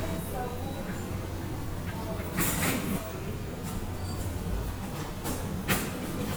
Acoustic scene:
subway station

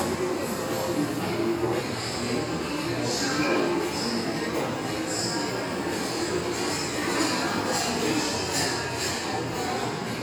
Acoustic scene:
restaurant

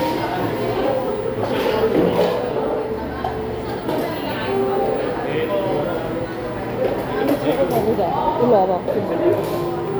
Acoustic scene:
cafe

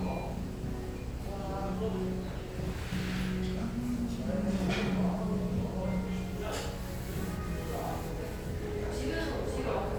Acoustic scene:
restaurant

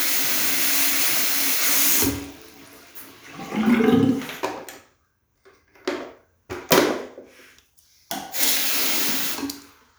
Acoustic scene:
restroom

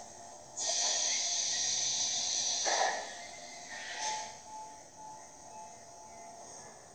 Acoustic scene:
subway train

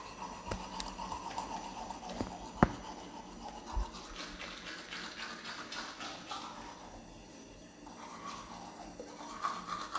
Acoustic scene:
restroom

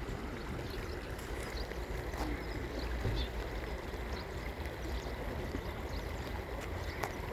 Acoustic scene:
park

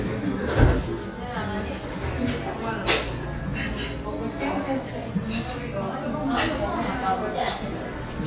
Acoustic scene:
cafe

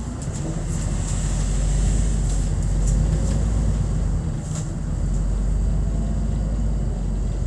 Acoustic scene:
bus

